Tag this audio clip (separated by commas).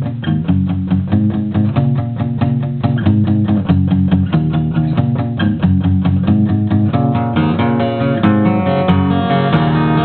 Guitar, Acoustic guitar, Musical instrument, Strum, Plucked string instrument, Music